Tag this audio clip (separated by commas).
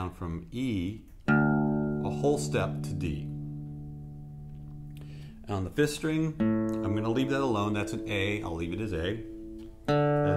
Acoustic guitar, Musical instrument, Plucked string instrument, Speech, Guitar, Music